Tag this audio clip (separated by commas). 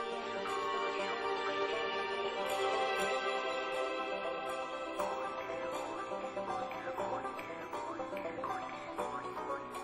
Music